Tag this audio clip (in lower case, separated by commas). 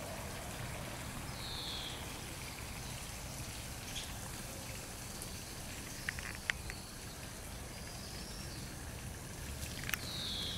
animal, outside, rural or natural